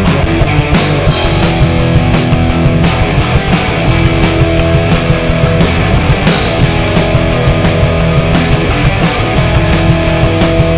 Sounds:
Music

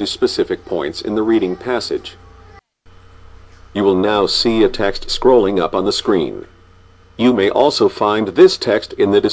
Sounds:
Speech

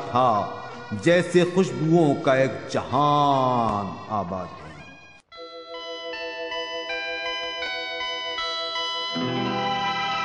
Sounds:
Music, Speech

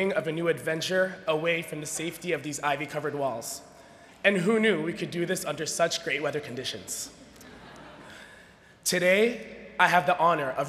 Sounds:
monologue, Speech, man speaking

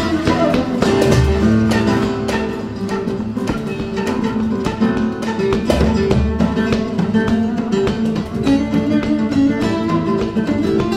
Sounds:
Flamenco, Musical instrument, Music, Music of Latin America, Guitar

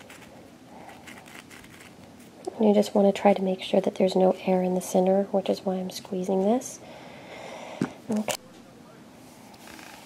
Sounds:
Speech, inside a small room

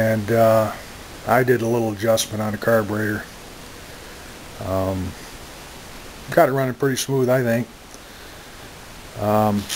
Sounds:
Speech

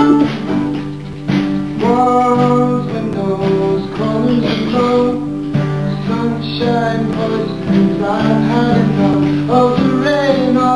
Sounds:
Singing, Vocal music

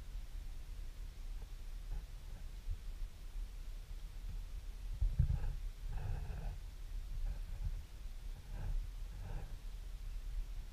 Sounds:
Silence

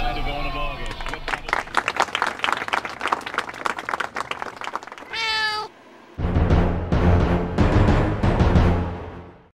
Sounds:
Siren

